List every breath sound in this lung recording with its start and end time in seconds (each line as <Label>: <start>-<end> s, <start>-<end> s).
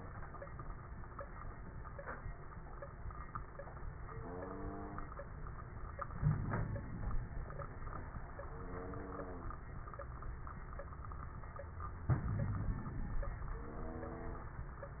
Inhalation: 6.14-7.40 s, 12.09-13.21 s
Wheeze: 6.19-6.83 s, 12.32-12.89 s